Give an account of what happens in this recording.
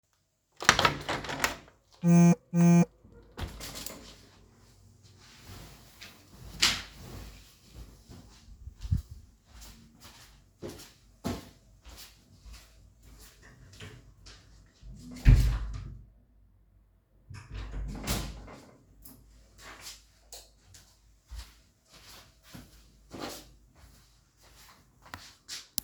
I opened the window, got notification. I made the bed and walked outside the room, closed than opened the door, tunred lights on and walked back inside.